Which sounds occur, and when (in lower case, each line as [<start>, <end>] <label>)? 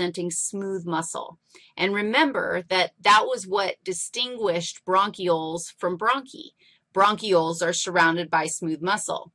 [0.00, 1.36] female speech
[0.00, 9.34] mechanisms
[0.57, 0.64] tick
[1.39, 1.73] breathing
[1.73, 2.86] female speech
[3.02, 6.51] female speech
[6.54, 6.81] breathing
[6.93, 9.28] female speech